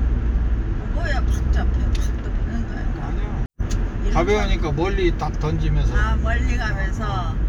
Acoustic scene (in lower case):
car